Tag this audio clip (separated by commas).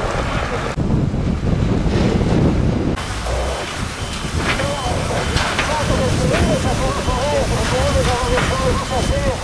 Wind noise (microphone), Wind, Fire